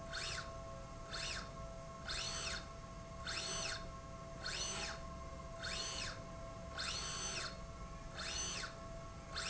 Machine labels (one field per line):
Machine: slide rail